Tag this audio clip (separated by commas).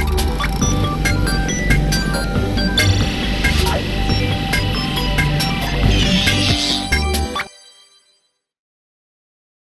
Music